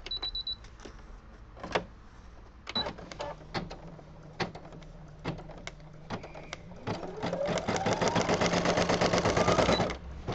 Beeping followed by a machine tapping and moving rapidly